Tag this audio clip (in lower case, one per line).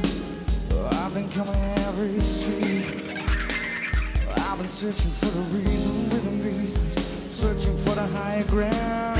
music